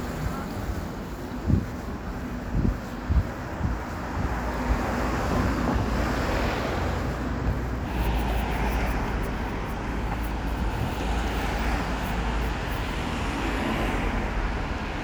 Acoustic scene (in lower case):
street